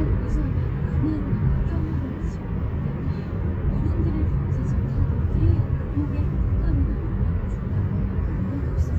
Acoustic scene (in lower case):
car